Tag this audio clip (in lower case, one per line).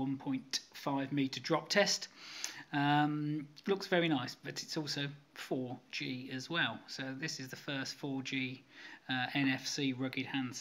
speech